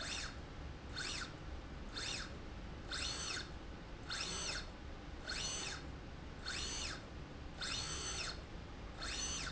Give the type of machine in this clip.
slide rail